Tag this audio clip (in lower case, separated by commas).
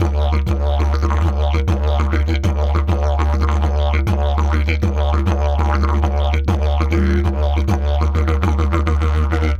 music, musical instrument